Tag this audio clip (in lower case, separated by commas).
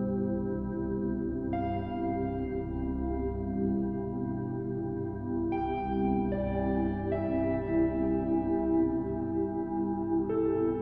ambient music, music, new-age music